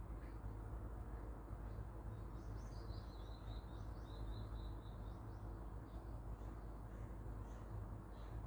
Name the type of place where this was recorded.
park